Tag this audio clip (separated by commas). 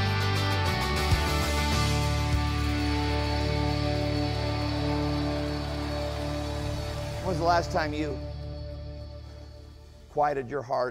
Speech, Music